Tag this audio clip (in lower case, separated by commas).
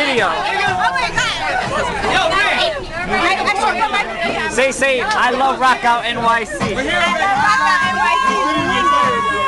speech, music